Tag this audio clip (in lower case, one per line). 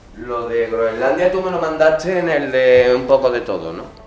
human voice